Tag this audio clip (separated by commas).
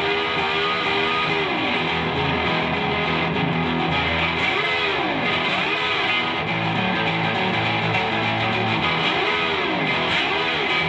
Steel guitar, Electric guitar, Music